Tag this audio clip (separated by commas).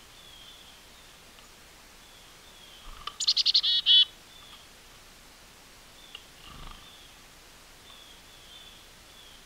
black capped chickadee calling